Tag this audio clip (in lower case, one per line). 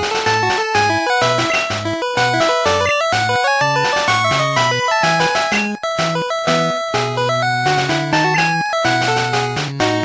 music